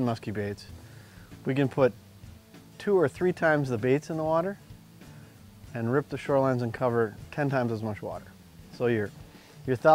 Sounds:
music, speech

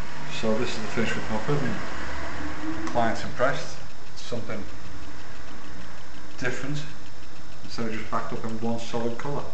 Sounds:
speech

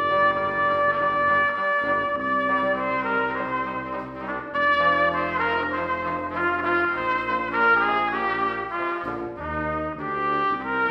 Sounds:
musical instrument, brass instrument, music, trumpet

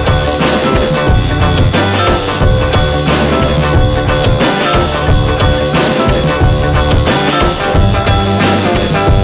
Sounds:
music

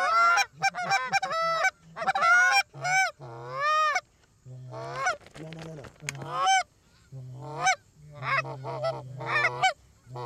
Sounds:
goose honking

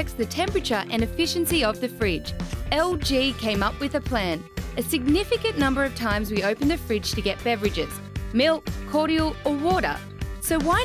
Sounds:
music, speech

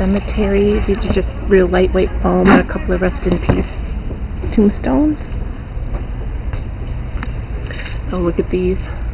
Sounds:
speech

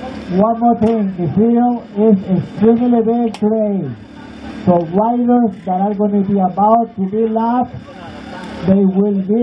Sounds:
speech

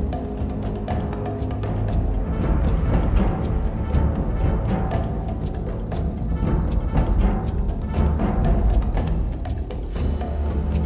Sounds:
timpani

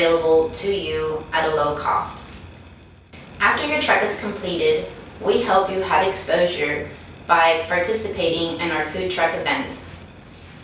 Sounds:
speech

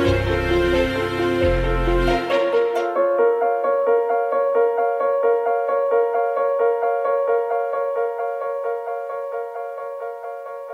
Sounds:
music

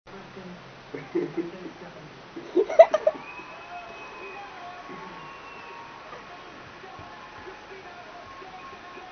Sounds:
speech

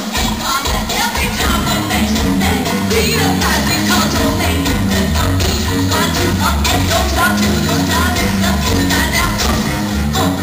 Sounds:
music

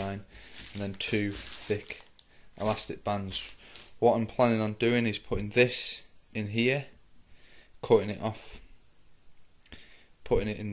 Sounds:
speech

